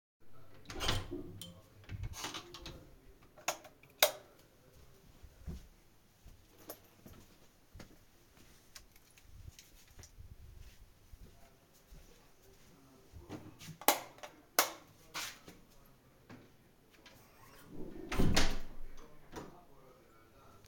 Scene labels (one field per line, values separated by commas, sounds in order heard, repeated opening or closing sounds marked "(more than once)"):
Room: storage room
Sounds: door (more than once), light switch, footsteps